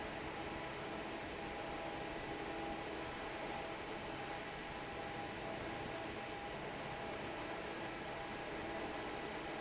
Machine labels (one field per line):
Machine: fan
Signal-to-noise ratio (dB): 6 dB